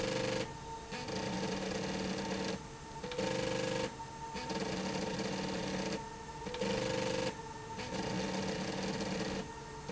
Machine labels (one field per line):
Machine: slide rail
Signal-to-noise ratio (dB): 0 dB